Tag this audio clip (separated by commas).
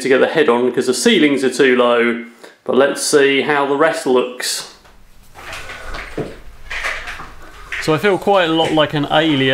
inside a small room, Speech